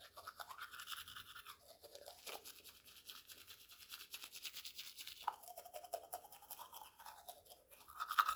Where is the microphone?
in a restroom